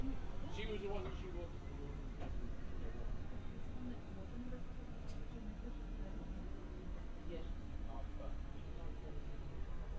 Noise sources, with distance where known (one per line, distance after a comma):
person or small group talking, near